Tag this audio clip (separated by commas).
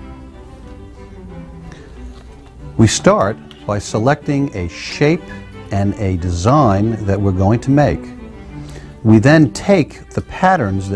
Music, Speech